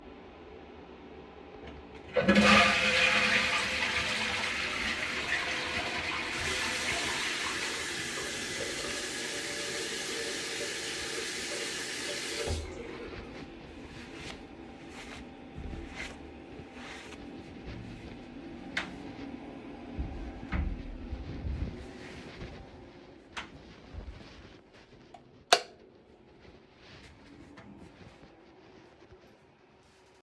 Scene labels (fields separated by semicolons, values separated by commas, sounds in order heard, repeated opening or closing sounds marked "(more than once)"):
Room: bathroom; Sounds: toilet flushing, running water, door (more than once), light switch